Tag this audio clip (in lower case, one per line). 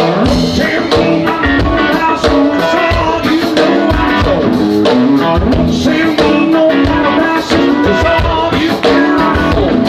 music